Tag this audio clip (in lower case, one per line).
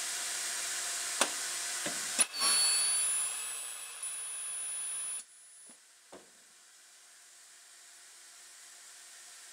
inside a small room